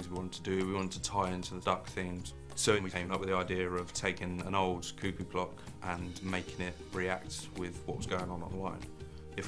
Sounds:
speech
music

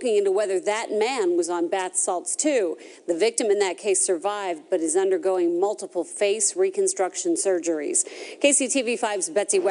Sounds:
speech

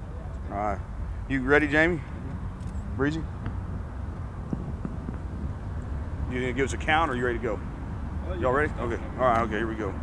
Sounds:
speech

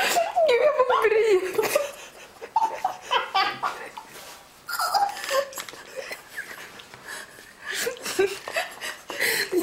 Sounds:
belly laugh

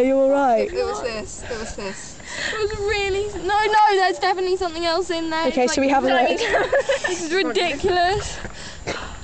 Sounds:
outside, rural or natural
speech

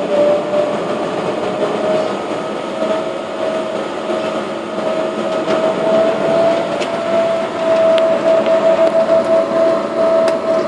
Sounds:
aircraft
airplane
vehicle

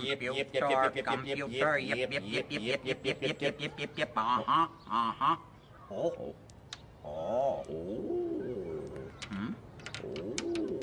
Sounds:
speech

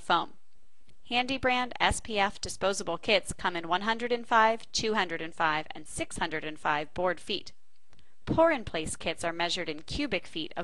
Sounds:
speech

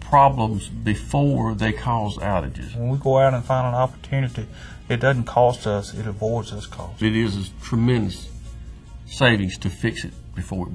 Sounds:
speech
music

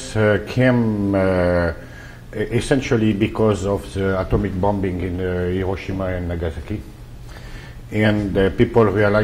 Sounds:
speech

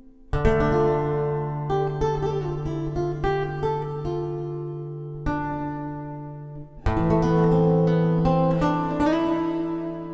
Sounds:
harp
music

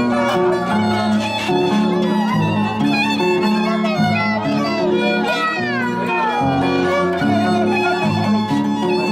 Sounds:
fiddle
pizzicato

